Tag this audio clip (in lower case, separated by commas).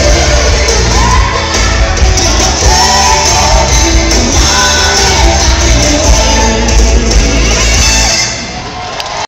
music, guitar, plucked string instrument, electric guitar, musical instrument